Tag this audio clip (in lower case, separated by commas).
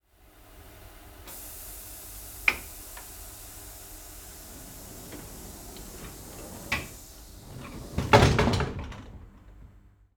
sliding door, train, rail transport, domestic sounds, vehicle, door